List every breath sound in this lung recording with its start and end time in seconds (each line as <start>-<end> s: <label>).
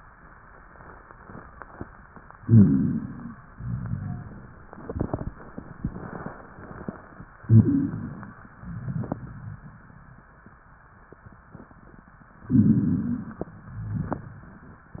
2.35-3.37 s: inhalation
2.39-3.35 s: stridor
3.51-4.74 s: exhalation
3.54-4.58 s: rhonchi
7.41-8.23 s: stridor
7.41-8.43 s: inhalation
8.48-10.28 s: exhalation
8.60-9.64 s: rhonchi
12.47-13.40 s: inhalation
12.51-13.32 s: rhonchi
13.50-14.90 s: exhalation
13.54-14.58 s: rhonchi